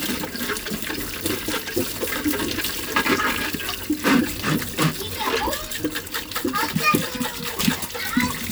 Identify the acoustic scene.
kitchen